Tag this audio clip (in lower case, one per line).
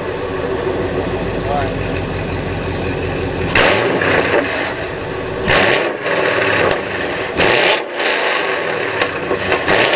outside, urban or man-made
speech
medium engine (mid frequency)
car
vehicle